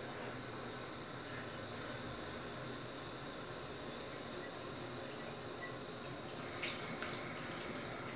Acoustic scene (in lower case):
restroom